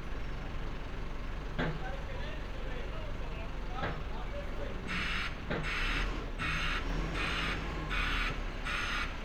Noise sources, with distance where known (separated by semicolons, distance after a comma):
jackhammer; person or small group talking